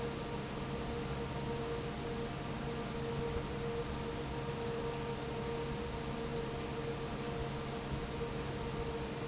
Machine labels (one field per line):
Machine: fan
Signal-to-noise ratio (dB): -6 dB